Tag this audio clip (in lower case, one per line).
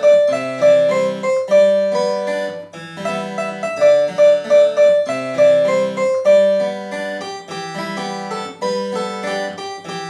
piano
music